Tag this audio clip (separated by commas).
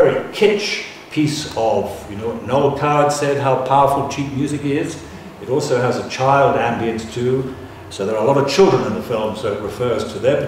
Speech